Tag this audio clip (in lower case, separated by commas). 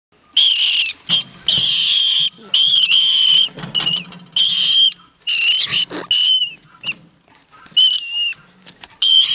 animal